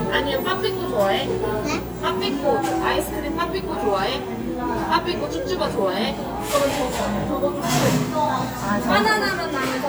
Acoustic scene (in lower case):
cafe